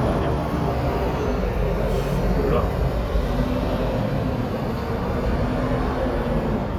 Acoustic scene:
street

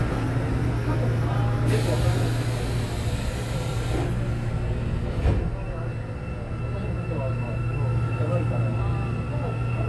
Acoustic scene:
subway train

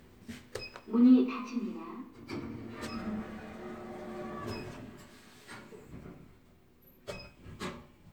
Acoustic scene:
elevator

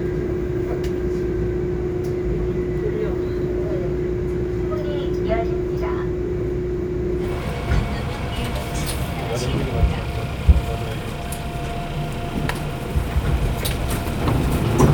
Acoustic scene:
subway train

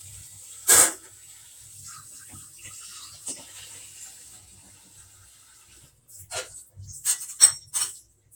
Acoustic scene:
kitchen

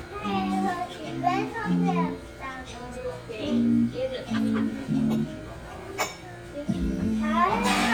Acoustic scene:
crowded indoor space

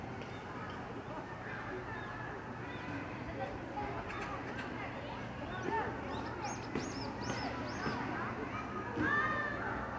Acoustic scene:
park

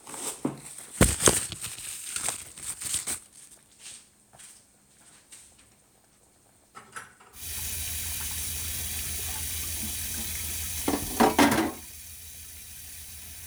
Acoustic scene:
kitchen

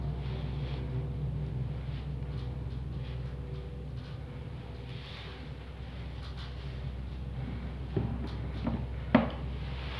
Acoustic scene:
elevator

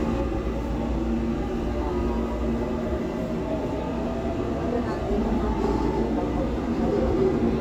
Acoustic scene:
subway train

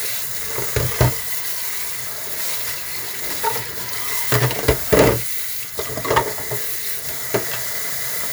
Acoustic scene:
kitchen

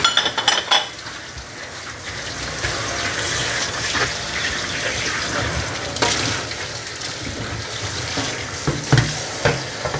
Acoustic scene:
kitchen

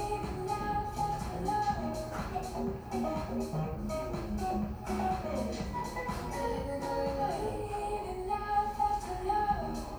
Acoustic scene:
cafe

